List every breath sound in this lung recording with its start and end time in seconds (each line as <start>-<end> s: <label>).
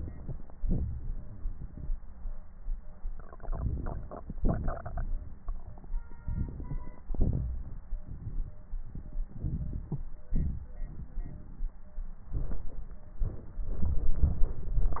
3.34-4.16 s: inhalation
4.40-5.09 s: exhalation
6.26-7.06 s: crackles
6.28-7.08 s: inhalation
7.11-7.44 s: crackles
7.13-7.80 s: exhalation
9.37-10.04 s: inhalation
10.30-11.10 s: exhalation